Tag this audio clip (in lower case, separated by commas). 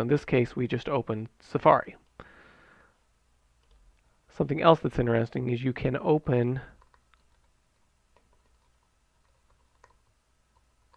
speech